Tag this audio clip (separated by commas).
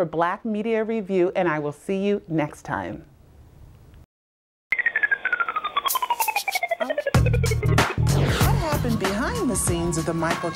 Music, Speech, woman speaking